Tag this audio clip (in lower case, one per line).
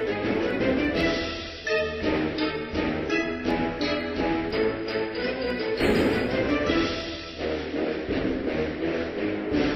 music